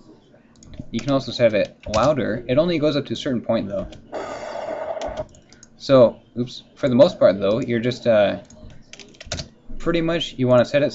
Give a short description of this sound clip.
A man speaks while typing